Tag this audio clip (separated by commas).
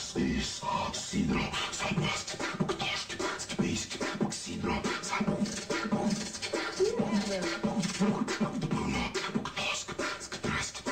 Speech, Beatboxing